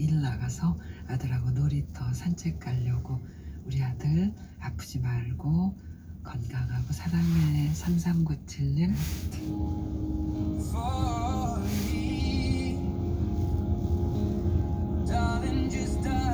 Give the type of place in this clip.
car